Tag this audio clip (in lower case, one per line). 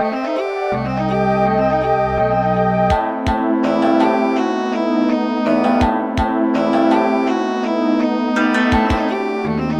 music